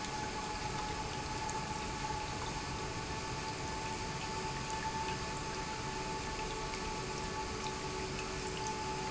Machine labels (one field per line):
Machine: pump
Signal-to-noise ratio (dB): -6 dB